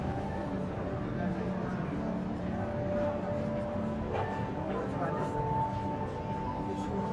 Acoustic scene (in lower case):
crowded indoor space